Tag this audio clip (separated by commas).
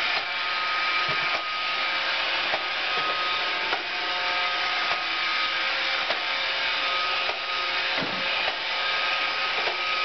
Vacuum cleaner